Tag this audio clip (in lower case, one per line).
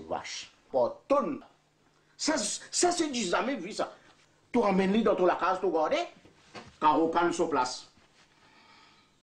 speech